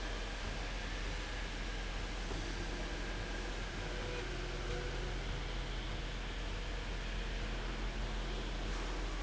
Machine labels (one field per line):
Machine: slide rail